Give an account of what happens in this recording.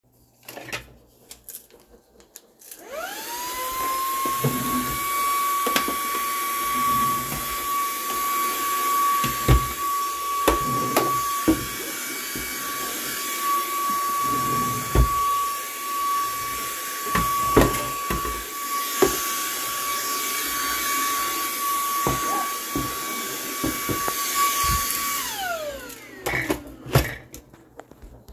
Turned on vacuum cleaner, opened drawers, cleaned drawers, closed drawers, turned off vacuum cleaner.